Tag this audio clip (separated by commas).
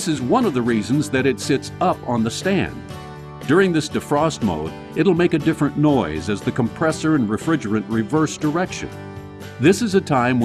Music, Speech